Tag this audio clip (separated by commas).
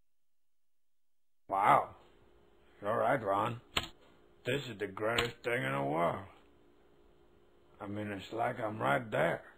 Speech